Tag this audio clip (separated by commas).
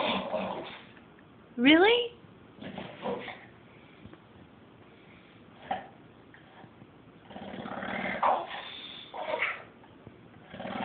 Speech, Animal